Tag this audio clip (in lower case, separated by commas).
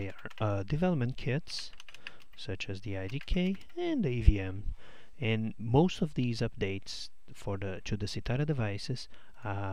speech